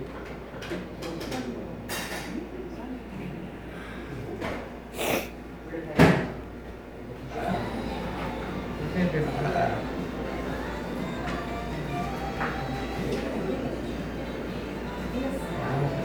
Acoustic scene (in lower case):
cafe